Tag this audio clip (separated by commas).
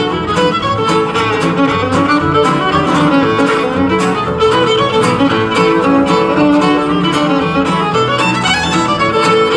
Music, fiddle, Musical instrument